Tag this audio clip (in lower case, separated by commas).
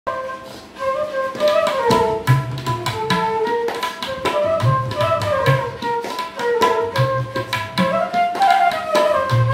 playing tabla